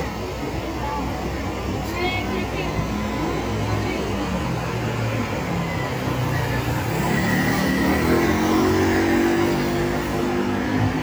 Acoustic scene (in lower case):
street